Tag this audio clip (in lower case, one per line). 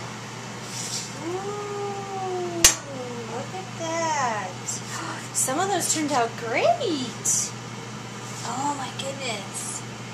dishes, pots and pans